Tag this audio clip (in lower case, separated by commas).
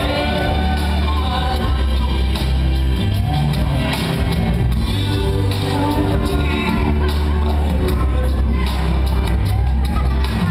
speech, music